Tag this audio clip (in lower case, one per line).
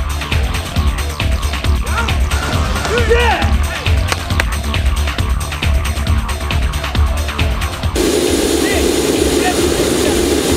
fixed-wing aircraft
music